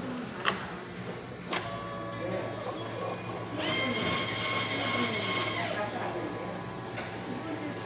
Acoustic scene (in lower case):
restaurant